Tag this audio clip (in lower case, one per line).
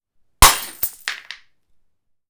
glass
shatter